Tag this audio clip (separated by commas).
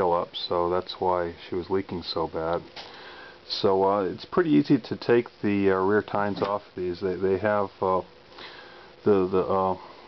Speech